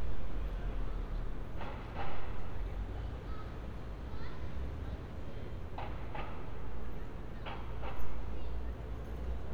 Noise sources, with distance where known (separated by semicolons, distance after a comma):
person or small group talking, far